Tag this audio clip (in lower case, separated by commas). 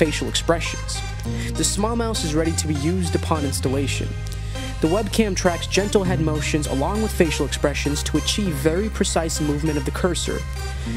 music, speech